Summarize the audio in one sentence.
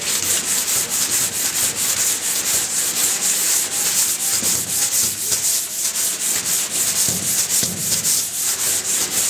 Something is being wet sanded with fast swipes